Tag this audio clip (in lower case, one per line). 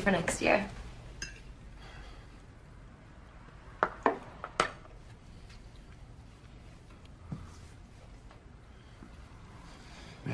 speech